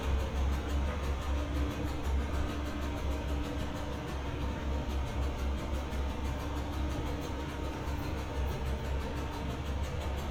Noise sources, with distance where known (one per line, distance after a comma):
unidentified impact machinery